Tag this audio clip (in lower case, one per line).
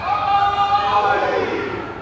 cheering
human group actions
shout
human voice